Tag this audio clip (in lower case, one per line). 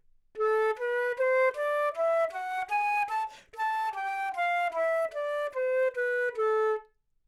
musical instrument
woodwind instrument
music